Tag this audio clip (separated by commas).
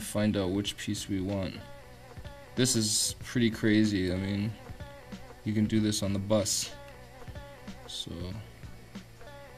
Speech, Music